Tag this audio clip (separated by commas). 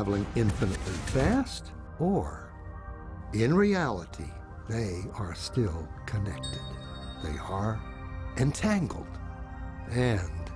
Music, Speech